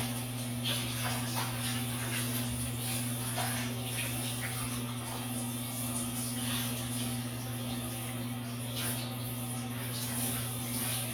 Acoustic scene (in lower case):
restroom